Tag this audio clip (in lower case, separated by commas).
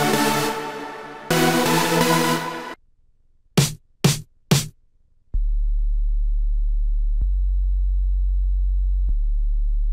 music, electronic music